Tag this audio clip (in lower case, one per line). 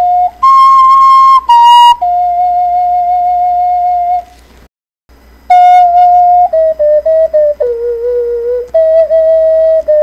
music